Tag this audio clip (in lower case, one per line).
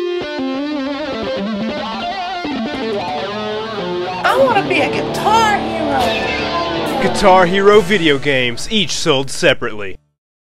acoustic guitar
music
electric guitar
musical instrument
speech
plucked string instrument